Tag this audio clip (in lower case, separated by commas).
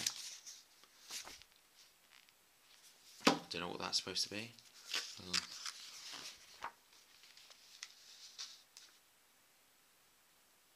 speech